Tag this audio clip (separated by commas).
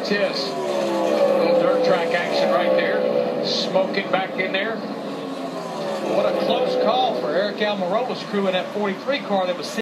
Car, Skidding, Speech, Vehicle, Motor vehicle (road)